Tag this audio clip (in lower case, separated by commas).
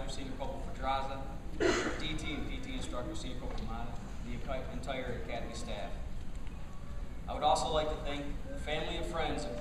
monologue, speech, man speaking